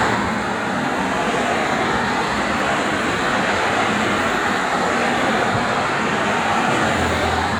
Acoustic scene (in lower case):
street